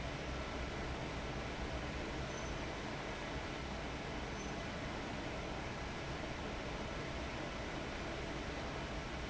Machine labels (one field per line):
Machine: fan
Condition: abnormal